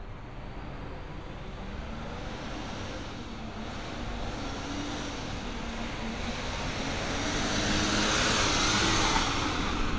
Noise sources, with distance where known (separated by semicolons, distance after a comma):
large-sounding engine, near